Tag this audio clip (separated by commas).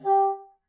woodwind instrument, Music, Musical instrument